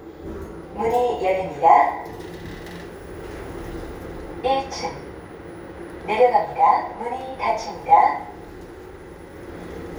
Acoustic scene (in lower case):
elevator